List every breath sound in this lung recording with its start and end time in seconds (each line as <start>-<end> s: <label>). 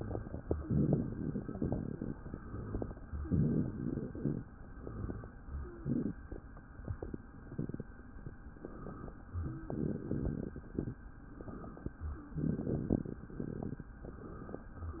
0.61-2.11 s: exhalation
2.16-3.06 s: inhalation
3.25-4.48 s: exhalation
4.71-5.33 s: inhalation
4.71-5.33 s: rhonchi
5.58-5.83 s: wheeze
5.58-6.26 s: exhalation
8.54-9.20 s: inhalation
9.30-9.70 s: wheeze
9.71-10.61 s: exhalation
11.35-11.97 s: inhalation
11.99-12.31 s: wheeze
12.39-13.26 s: exhalation
12.39-13.26 s: rhonchi